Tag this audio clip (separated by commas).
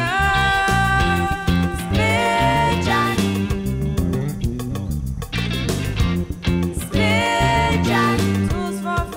Music